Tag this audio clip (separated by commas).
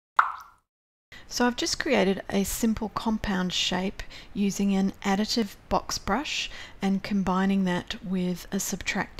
Speech, Plop